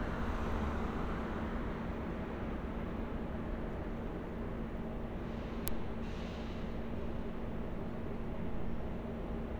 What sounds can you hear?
engine of unclear size